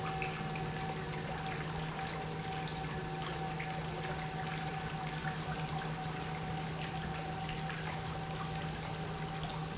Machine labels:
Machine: pump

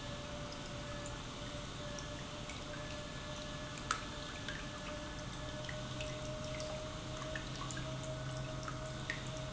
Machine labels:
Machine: pump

